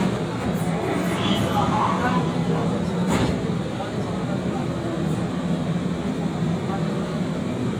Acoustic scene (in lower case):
subway train